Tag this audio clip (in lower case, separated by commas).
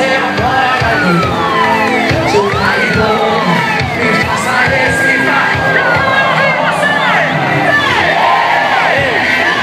speech, crowd, music, people crowd